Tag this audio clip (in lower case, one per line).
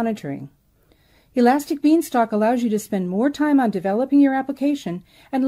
speech